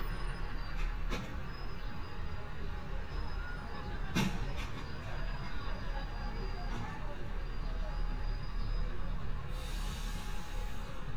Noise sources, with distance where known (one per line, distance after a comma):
large-sounding engine, near